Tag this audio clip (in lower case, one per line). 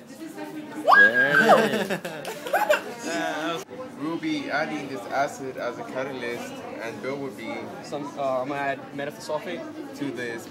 speech